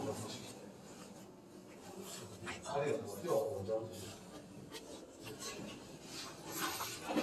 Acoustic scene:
elevator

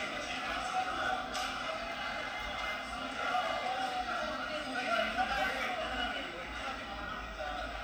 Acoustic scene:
cafe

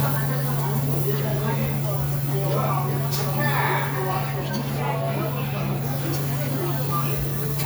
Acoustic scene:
restaurant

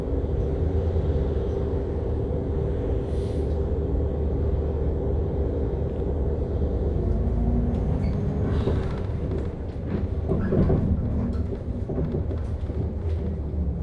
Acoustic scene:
bus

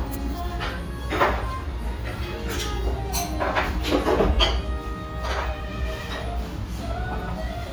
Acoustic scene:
restaurant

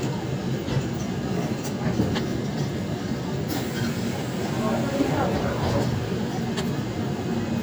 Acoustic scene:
subway train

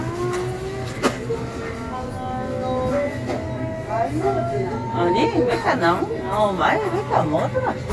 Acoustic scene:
crowded indoor space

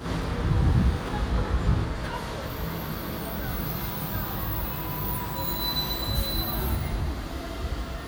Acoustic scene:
street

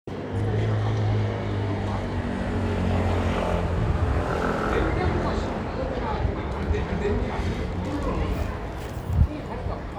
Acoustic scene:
residential area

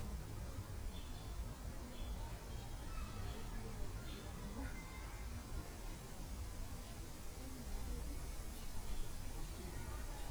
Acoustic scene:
park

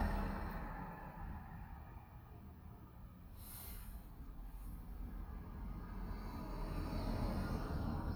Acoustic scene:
residential area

